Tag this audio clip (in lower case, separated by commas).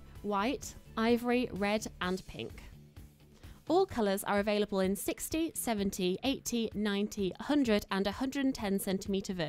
speech, music